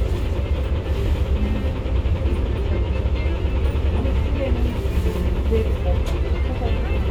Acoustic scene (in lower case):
bus